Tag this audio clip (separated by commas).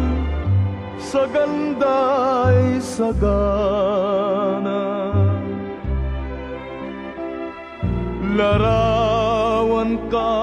Music